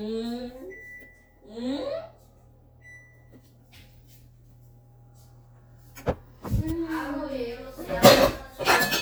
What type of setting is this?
kitchen